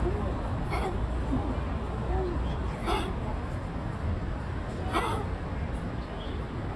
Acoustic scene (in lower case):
park